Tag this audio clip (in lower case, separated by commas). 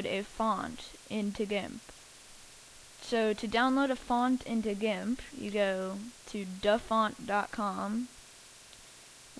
speech